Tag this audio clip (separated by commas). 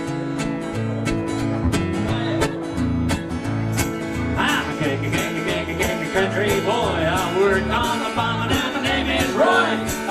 Country, Music, Musical instrument